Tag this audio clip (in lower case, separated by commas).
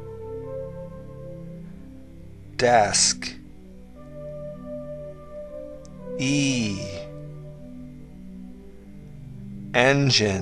music, speech